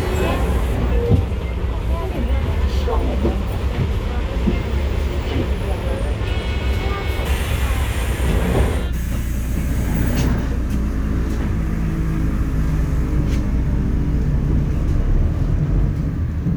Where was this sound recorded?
on a bus